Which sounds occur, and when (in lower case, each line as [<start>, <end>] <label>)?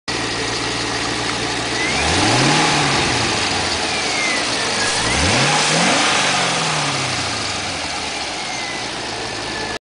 [0.04, 9.71] engine